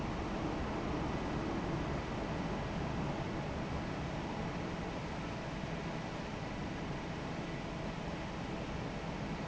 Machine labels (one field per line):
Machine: fan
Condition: normal